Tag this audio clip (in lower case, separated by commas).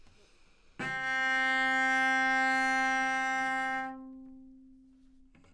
musical instrument, bowed string instrument, music